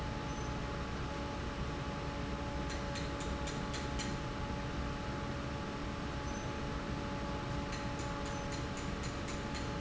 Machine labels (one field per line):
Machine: fan